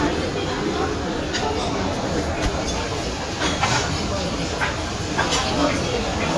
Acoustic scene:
crowded indoor space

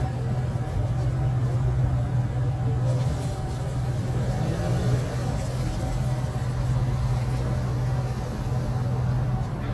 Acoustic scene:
street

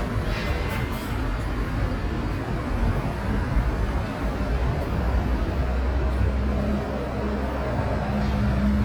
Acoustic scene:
street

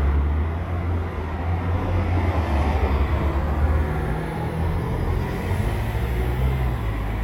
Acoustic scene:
street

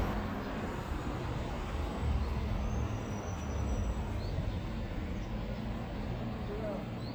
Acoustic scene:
street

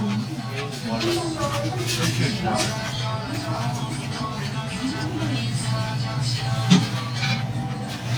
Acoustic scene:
restaurant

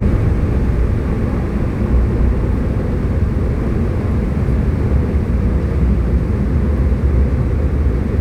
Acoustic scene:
subway train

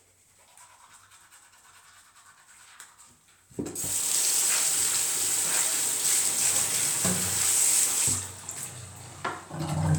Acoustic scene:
restroom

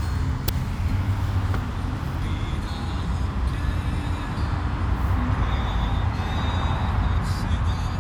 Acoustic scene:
car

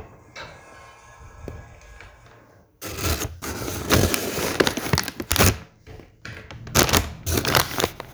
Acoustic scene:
elevator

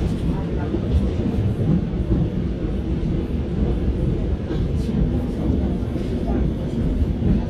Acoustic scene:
subway train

